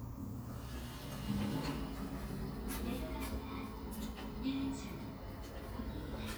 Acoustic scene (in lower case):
elevator